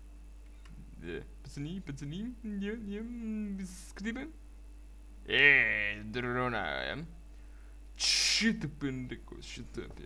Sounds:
Speech

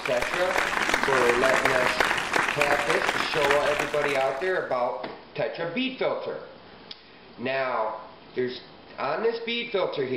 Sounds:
Speech

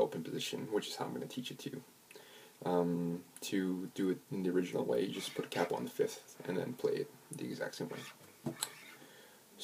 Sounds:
Speech

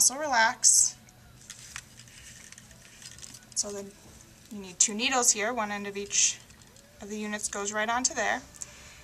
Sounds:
Speech, inside a small room

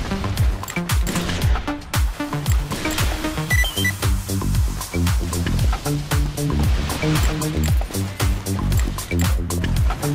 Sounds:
Music

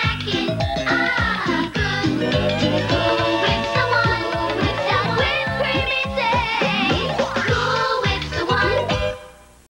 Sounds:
Music

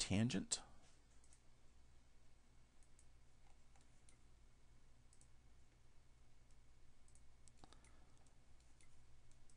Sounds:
Speech

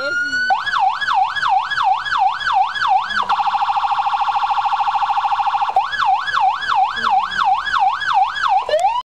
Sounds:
Police car (siren), Speech

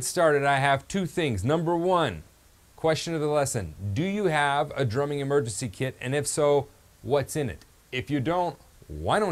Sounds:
Speech

